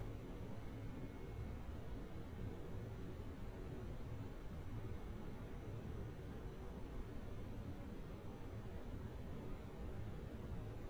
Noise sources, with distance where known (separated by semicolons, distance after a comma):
background noise